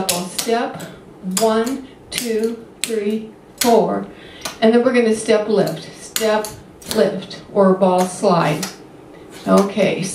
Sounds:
Speech

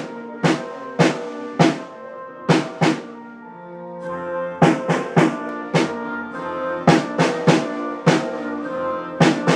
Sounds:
playing snare drum

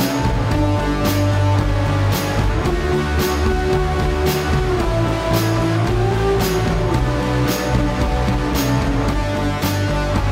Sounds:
Soundtrack music, Music

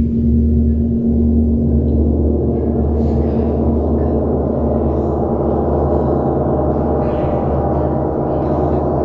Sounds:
playing gong

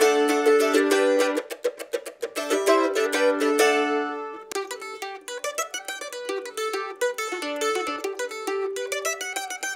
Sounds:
playing mandolin

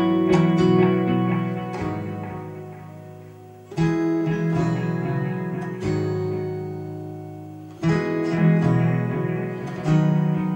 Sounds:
Music, Acoustic guitar, Guitar, Plucked string instrument, Strum, Musical instrument

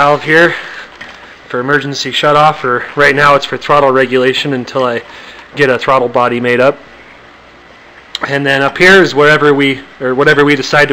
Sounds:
Speech

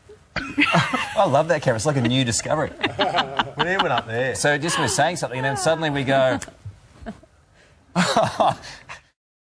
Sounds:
Speech

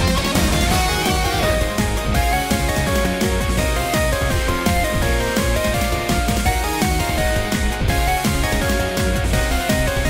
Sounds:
Music, Background music, Theme music

